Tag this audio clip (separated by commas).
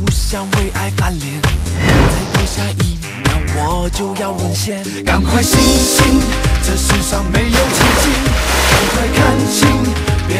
Music